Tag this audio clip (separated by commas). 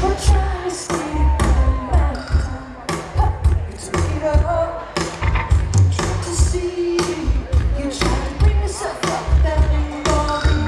Music